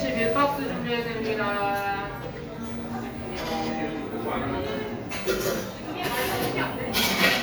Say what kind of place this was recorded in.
cafe